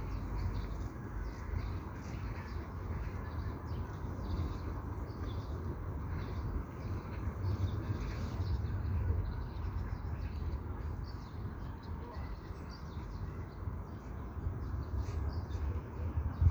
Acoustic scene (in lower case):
park